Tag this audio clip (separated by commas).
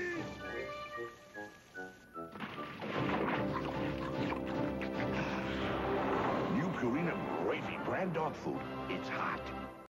Speech, Music